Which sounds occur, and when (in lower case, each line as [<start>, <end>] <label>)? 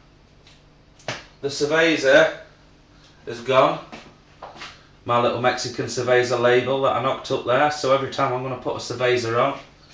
[0.00, 9.93] mechanisms
[0.45, 0.68] generic impact sounds
[1.02, 1.22] generic impact sounds
[1.42, 2.46] male speech
[3.24, 3.87] male speech
[3.87, 4.12] footsteps
[4.42, 4.75] footsteps
[5.02, 9.63] male speech